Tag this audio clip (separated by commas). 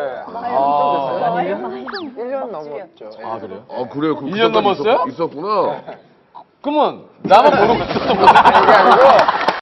Speech